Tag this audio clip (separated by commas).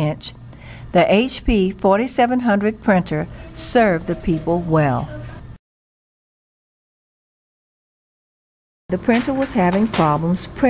Speech, Printer